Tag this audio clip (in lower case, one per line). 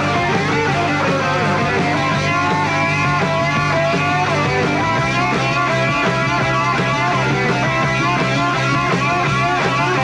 music
psychedelic rock